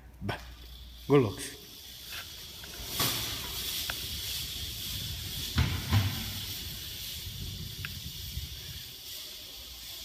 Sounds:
bicycle, speech, vehicle, inside a large room or hall

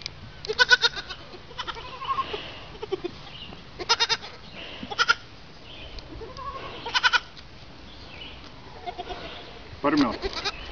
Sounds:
bleat, sheep, speech

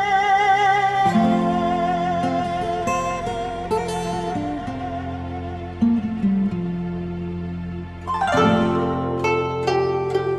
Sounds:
music

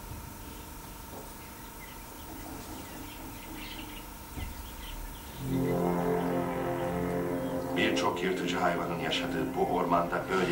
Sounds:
animal, speech, music

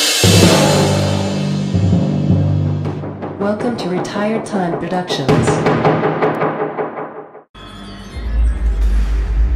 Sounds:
music, speech, timpani

